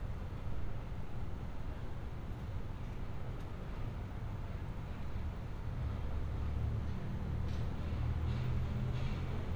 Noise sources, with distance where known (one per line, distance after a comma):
medium-sounding engine, far